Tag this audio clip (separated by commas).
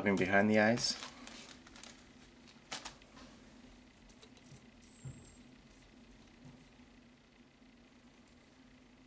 Speech